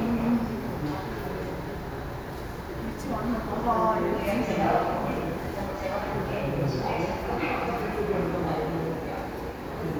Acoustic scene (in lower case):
subway station